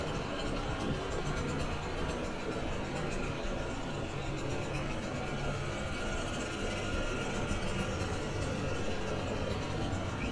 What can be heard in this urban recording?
unidentified impact machinery